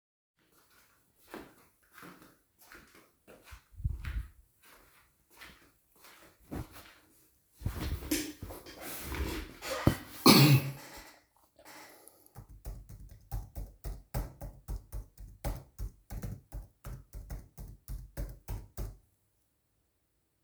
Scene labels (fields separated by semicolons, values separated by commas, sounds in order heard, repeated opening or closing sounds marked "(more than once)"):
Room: office; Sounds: footsteps, keyboard typing